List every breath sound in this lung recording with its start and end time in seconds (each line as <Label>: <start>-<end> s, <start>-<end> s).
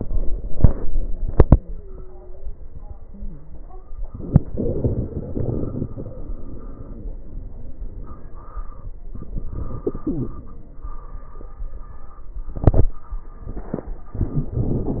Inhalation: 0.00-0.63 s, 4.06-4.55 s, 9.09-9.87 s, 14.16-14.59 s
Exhalation: 0.64-3.66 s, 4.52-6.70 s, 9.89-11.44 s, 14.59-15.00 s
Wheeze: 1.50-2.58 s, 3.05-3.62 s
Crackles: 4.03-4.49 s, 4.52-6.70 s, 9.09-9.87 s, 9.89-11.44 s